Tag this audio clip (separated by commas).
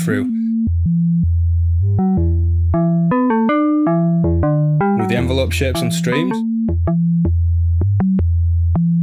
Music, Speech, Synthesizer